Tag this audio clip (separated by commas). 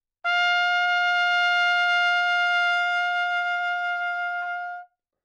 Music, Musical instrument, Trumpet, Brass instrument